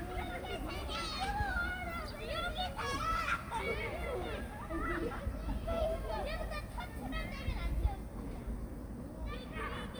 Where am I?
in a park